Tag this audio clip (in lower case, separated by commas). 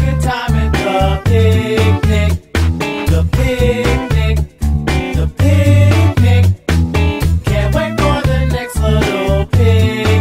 happy music, music